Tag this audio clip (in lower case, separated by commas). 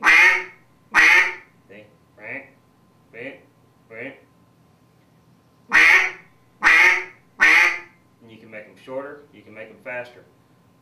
quack, speech